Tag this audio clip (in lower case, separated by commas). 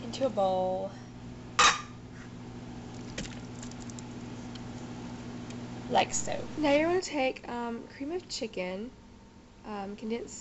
speech